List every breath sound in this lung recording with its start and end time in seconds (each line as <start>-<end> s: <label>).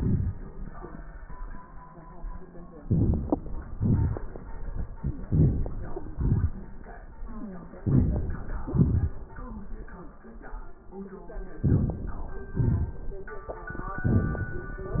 2.78-3.74 s: crackles
2.78-3.78 s: inhalation
3.77-4.87 s: exhalation
3.77-4.87 s: crackles
5.21-6.13 s: inhalation
5.21-6.13 s: crackles
6.13-7.17 s: exhalation
7.21-7.79 s: wheeze
7.80-8.65 s: inhalation
7.80-8.65 s: crackles
8.65-9.93 s: exhalation
11.54-12.49 s: inhalation
12.48-13.78 s: crackles